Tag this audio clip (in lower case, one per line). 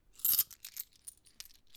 coin (dropping)
domestic sounds